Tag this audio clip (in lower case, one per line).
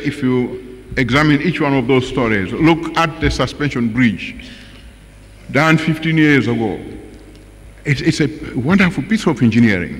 male speech
monologue
speech